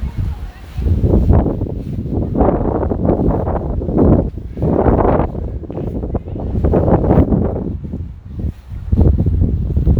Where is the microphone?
in a residential area